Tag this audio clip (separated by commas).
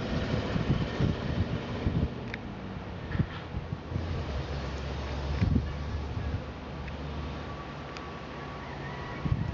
Vehicle, Truck